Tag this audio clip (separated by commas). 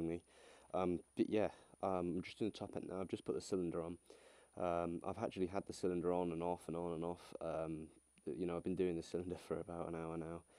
Speech